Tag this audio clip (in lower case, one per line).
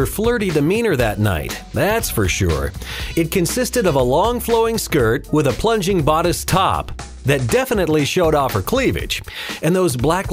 music
speech